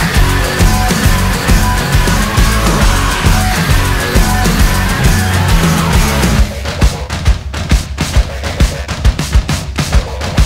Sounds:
exciting music
heavy metal
music

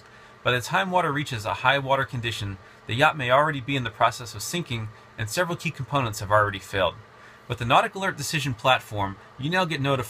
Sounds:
speech

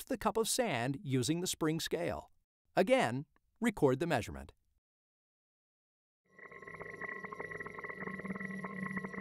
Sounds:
speech

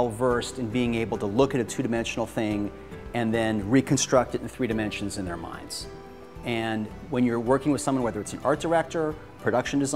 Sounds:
music
speech

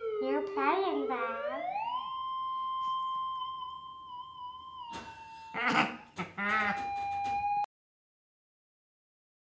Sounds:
speech

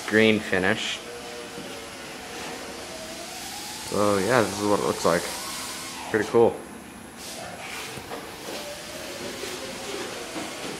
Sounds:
speech

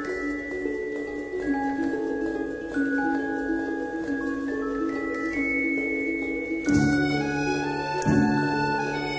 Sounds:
music
vibraphone

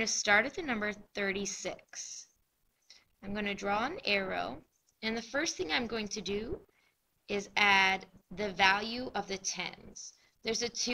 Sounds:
speech

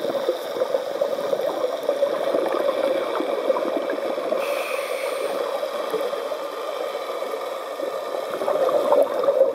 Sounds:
scuba diving

